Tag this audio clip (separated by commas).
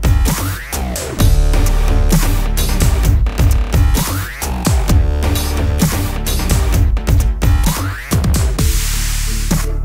Music